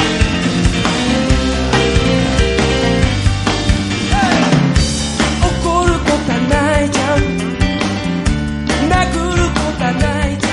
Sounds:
music

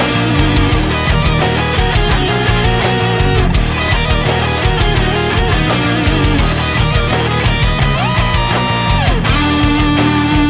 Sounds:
background music
music
angry music

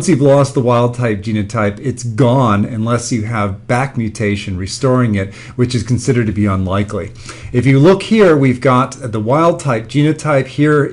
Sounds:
speech

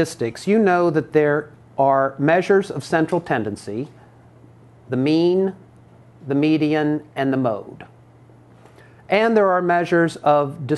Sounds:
speech

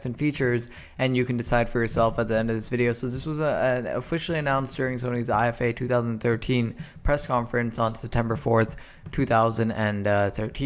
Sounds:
speech

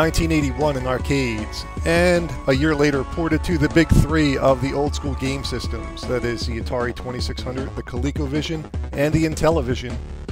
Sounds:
music
speech

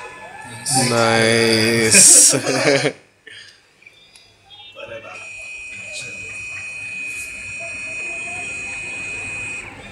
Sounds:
speech
printer

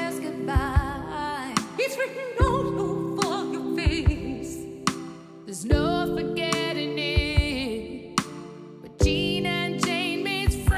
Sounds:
music

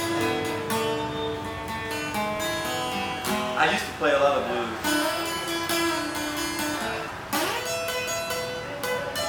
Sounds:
speech
music

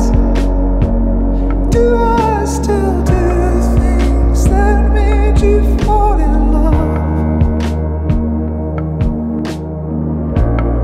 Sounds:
music

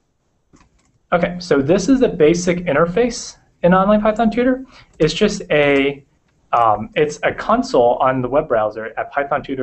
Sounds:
speech
inside a small room

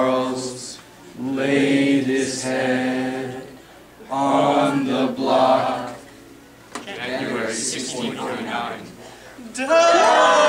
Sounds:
chant

